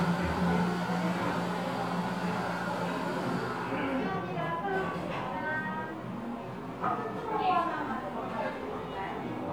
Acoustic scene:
cafe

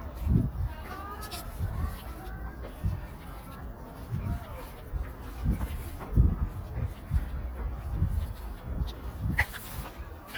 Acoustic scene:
residential area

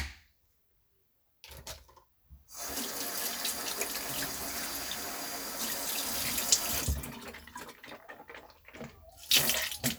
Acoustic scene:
restroom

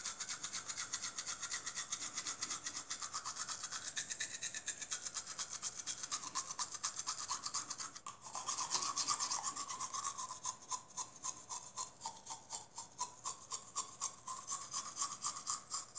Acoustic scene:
restroom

